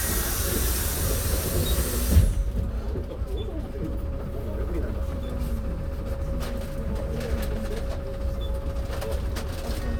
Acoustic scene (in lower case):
bus